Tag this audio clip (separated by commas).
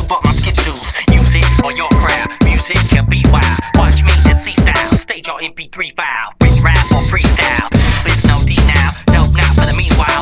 Music